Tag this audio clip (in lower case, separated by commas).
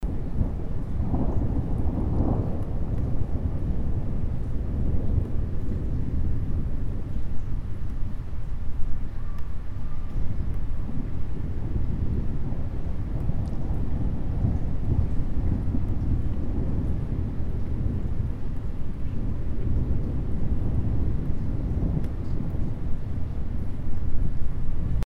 thunderstorm, thunder